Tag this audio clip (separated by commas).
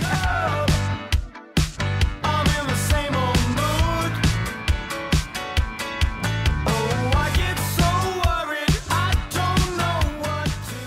Music